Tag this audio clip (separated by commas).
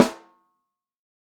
Percussion, Snare drum, Music, Musical instrument, Drum